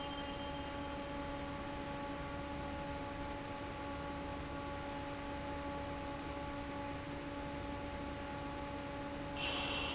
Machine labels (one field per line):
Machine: fan